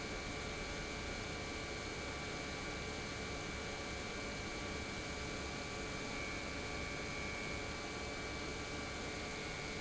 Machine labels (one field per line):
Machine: pump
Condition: normal